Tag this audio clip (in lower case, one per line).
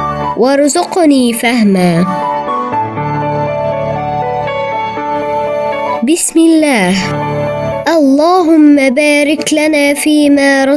speech
music